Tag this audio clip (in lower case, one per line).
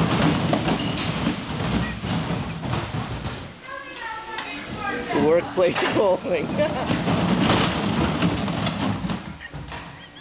speech
vehicle